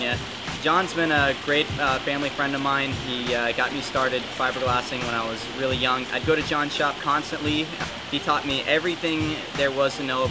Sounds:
Music, Speech

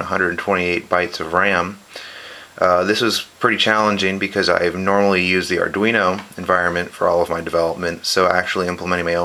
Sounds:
Speech

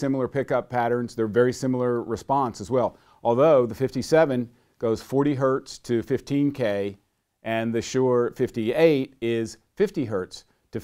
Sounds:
Speech

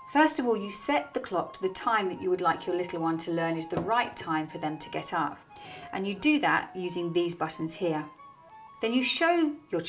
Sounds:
Speech, Music

